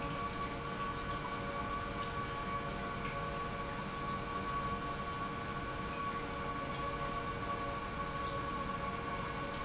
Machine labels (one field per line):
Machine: pump